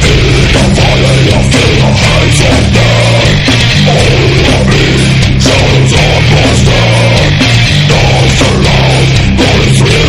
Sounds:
Music

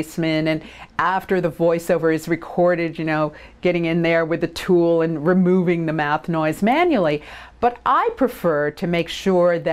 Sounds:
Speech

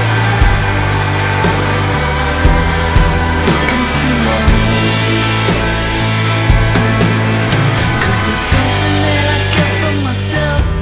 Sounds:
Grunge

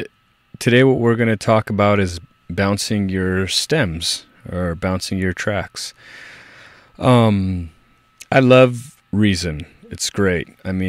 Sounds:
Speech

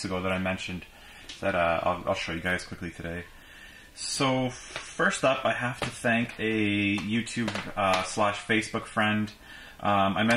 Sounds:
Speech

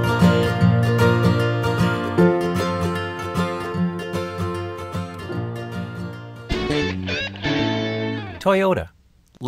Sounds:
Music, Speech

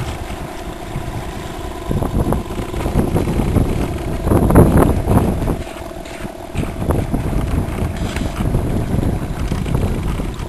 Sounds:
speedboat

